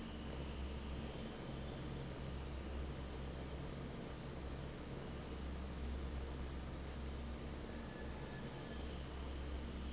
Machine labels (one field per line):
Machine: fan